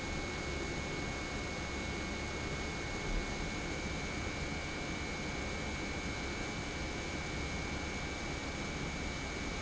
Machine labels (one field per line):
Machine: pump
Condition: normal